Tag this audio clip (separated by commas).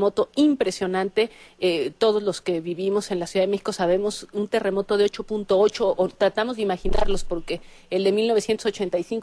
Speech